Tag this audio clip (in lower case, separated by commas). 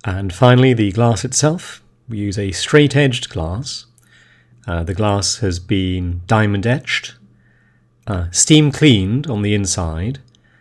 speech